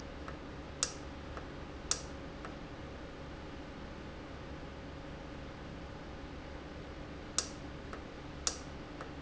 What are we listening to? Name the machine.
valve